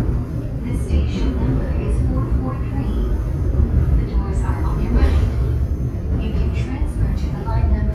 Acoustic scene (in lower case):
subway train